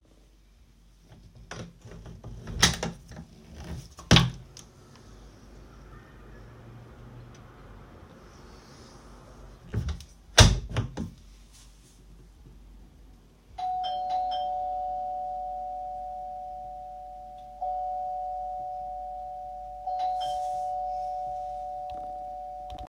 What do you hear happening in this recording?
I opened and closed the window, and then the doorbell rang.